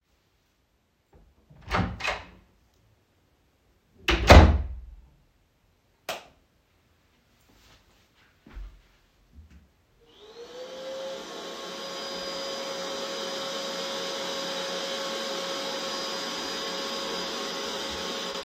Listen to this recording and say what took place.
I entered the living room and turned on the light. I walked over to the vacuum cleaner, turned it on to clean the floor for a few moments.